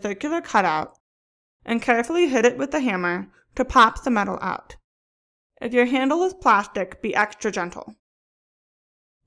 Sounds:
speech

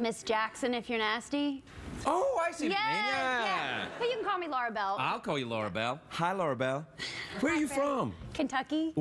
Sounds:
speech

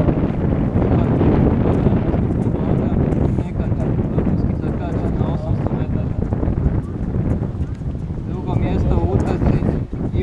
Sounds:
speech
outside, urban or man-made

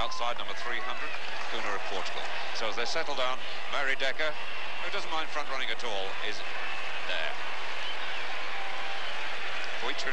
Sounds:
speech

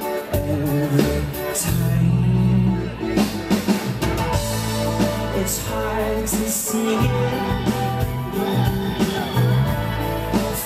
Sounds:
music

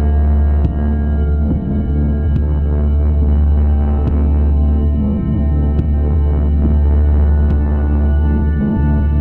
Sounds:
music
soundtrack music

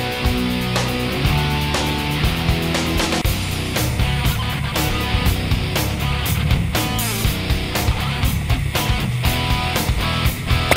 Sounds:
music

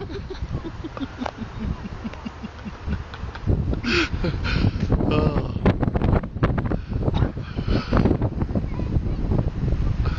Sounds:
wind noise (microphone)

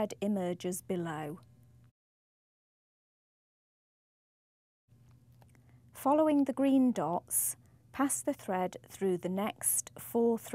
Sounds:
speech

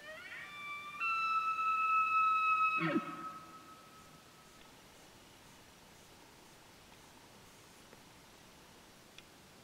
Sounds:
elk bugling

